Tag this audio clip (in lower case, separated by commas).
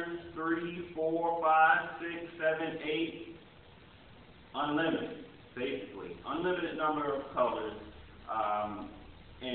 speech